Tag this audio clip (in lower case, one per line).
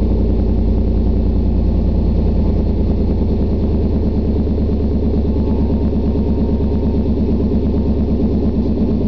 vehicle